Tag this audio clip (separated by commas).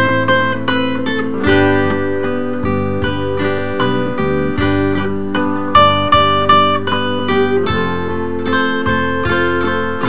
Music